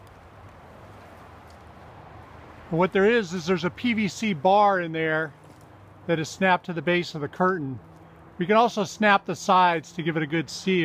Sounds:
Speech

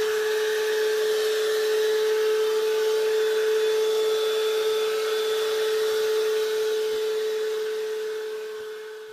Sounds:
vacuum cleaner cleaning floors

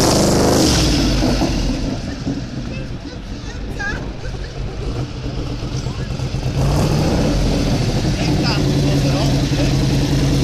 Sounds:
Speech

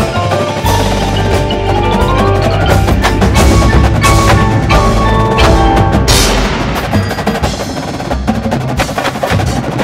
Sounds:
Music, Wood block, Percussion

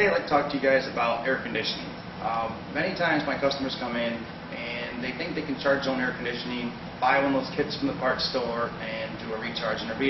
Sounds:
Speech

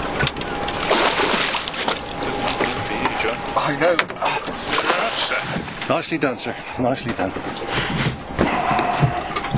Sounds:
outside, rural or natural, Water vehicle, Speech

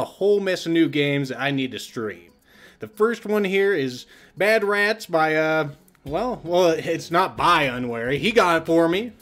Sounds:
Speech

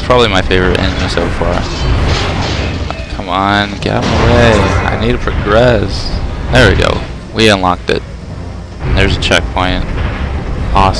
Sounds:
Speech

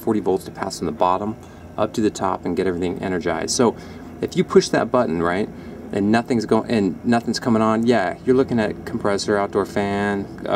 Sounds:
Speech

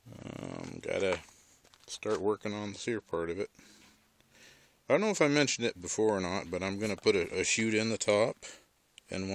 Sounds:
Speech

